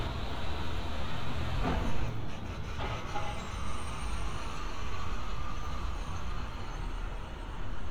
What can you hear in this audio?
large-sounding engine